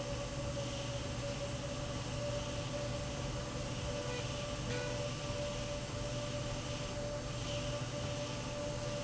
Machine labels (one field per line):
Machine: slide rail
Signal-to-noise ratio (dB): -6 dB